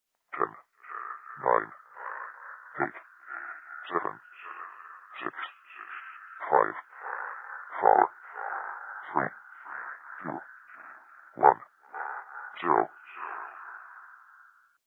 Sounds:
Speech synthesizer, Human voice, Speech

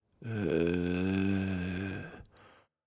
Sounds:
Human voice

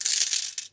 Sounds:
Coin (dropping), home sounds

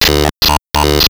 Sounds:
Human voice, Speech, Speech synthesizer

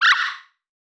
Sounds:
Animal

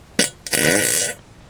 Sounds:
Fart

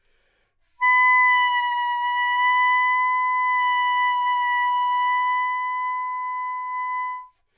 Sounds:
Music, Musical instrument, woodwind instrument

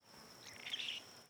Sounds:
Animal, Bird, Wild animals

